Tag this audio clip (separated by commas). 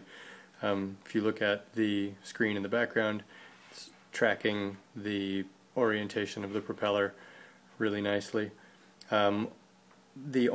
Speech